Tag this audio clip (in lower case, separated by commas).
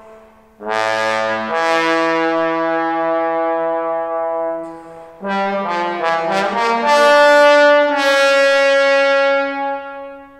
trombone, playing trombone, brass instrument